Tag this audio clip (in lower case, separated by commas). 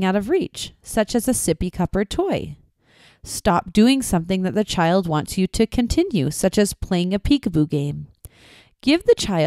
female speech, speech, monologue, speech synthesizer